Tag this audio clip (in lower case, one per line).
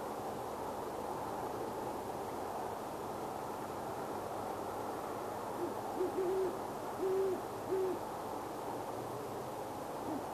owl hooting